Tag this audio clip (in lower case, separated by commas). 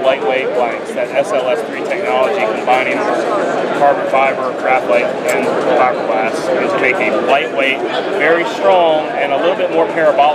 speech